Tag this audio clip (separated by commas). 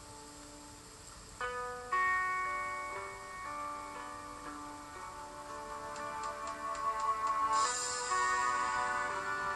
Music